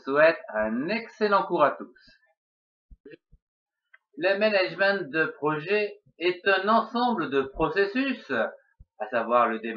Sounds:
speech

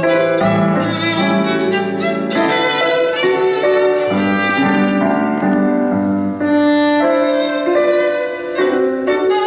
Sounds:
musical instrument, music, fiddle

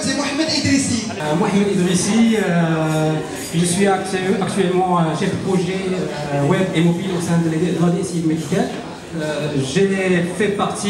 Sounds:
speech

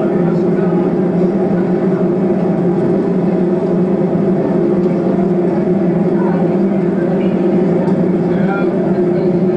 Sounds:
speech

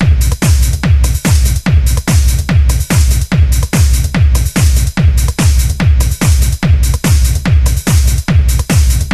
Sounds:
music

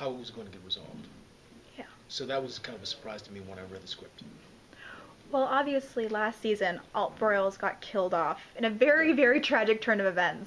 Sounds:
speech, inside a small room

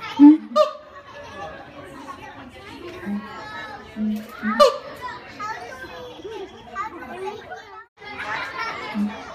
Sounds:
children playing, animal, speech, outside, rural or natural

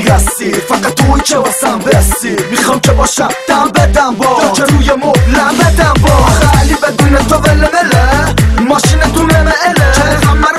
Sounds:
music, pop music, funny music

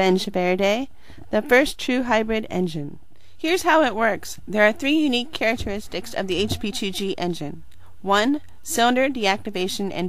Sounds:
speech

